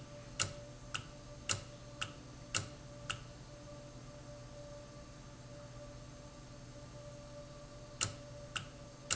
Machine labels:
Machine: valve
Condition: normal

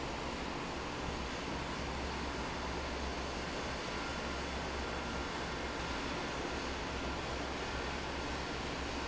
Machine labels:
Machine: fan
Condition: normal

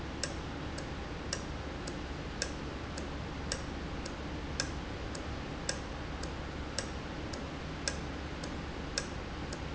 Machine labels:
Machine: valve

